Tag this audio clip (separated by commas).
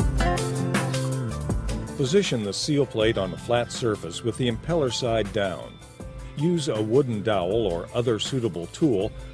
Music, Speech